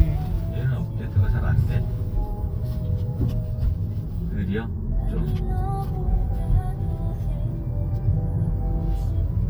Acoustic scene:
car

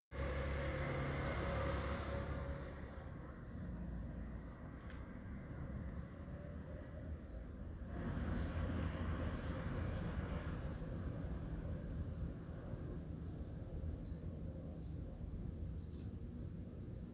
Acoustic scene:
residential area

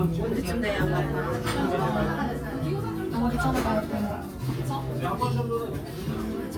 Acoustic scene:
crowded indoor space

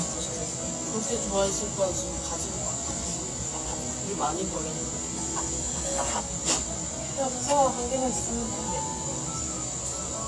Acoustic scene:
cafe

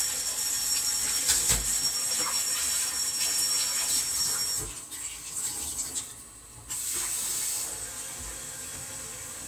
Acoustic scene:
kitchen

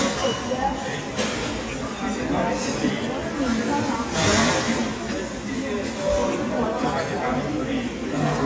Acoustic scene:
restaurant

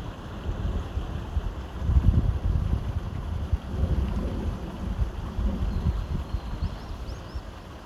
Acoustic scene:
park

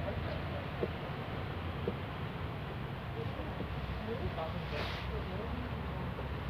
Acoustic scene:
residential area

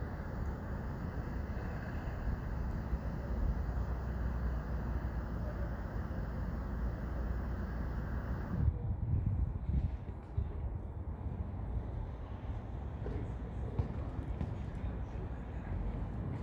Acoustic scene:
residential area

